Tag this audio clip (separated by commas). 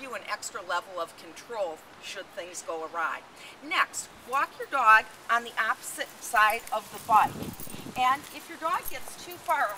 Speech